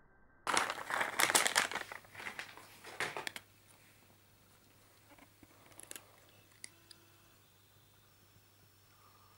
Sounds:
mastication, pets

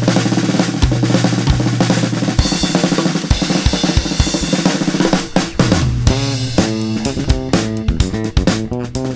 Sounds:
snare drum, hi-hat, drum kit, music, bass guitar, drum and bass, musical instrument, guitar, cymbal, percussion, bass drum, bowed string instrument, electronic music, plucked string instrument, playing drum kit, drum

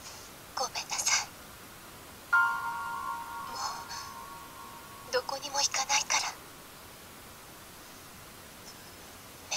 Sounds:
music, speech

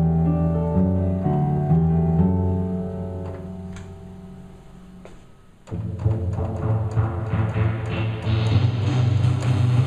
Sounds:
music, soundtrack music

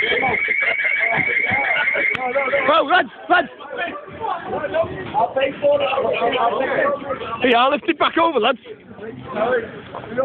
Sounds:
speech

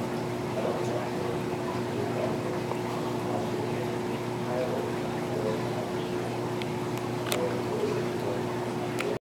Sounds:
speech

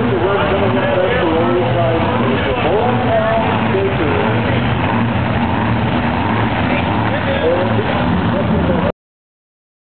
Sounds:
car, speech, vehicle

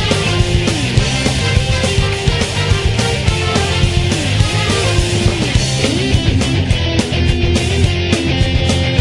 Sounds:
jazz, exciting music, music

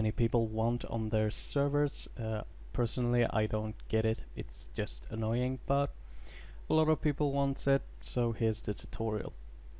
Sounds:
speech

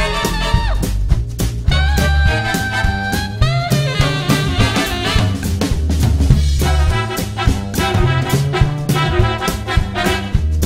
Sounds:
drum, music

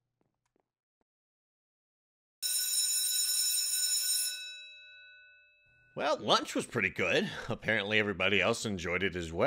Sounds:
inside a small room, silence, speech

